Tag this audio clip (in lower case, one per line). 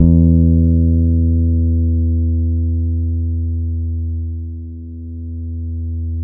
music
musical instrument
plucked string instrument
guitar
bass guitar